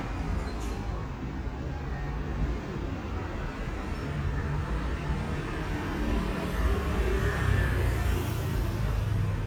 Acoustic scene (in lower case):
street